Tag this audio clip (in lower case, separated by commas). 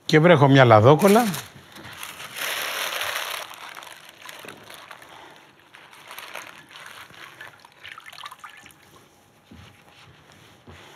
liquid, speech